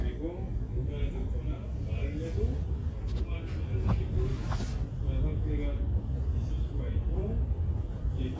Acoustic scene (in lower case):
crowded indoor space